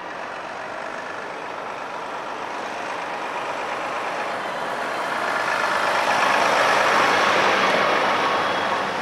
A truck passing by